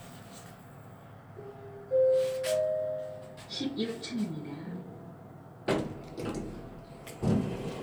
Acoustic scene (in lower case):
elevator